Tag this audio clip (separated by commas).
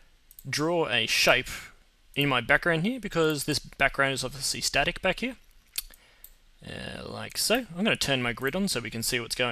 Speech